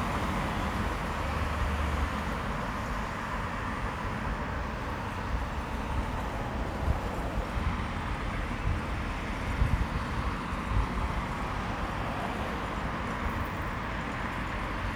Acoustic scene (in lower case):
street